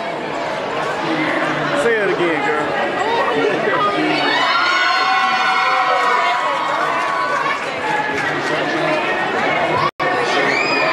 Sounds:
male speech, speech

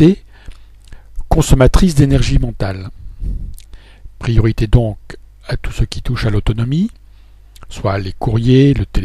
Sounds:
speech

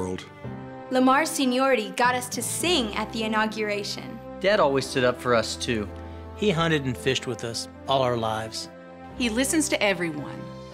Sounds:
speech, music

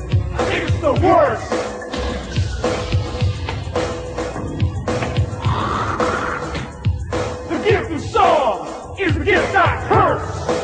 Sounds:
music

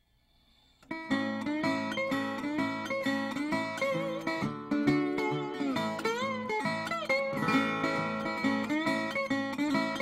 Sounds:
guitar, music

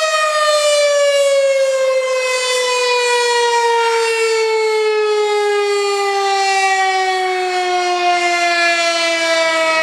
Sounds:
siren, civil defense siren

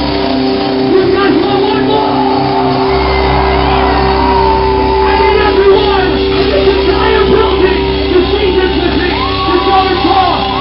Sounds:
music, speech

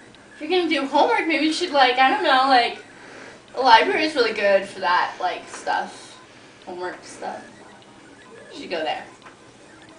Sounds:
inside a small room, speech

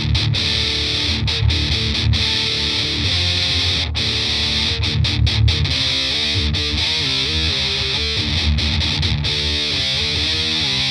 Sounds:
music

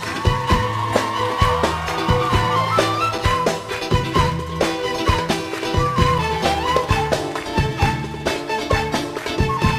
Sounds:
music

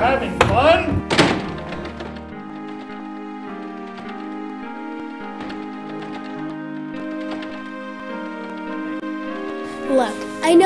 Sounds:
music, speech

